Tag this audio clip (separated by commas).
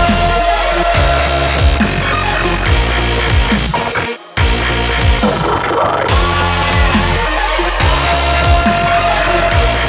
Dubstep, Music